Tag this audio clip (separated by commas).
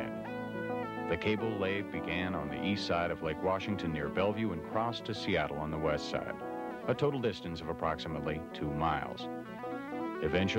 Speech, Music